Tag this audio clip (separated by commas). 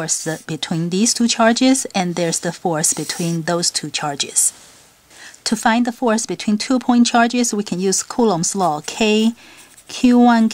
Speech